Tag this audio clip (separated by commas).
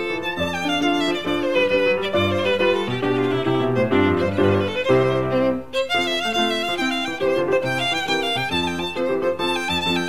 Bowed string instrument, fiddle